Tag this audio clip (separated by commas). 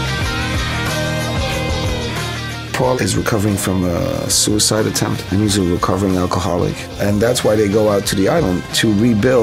Music, Speech